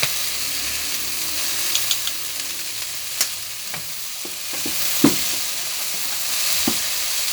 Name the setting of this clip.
kitchen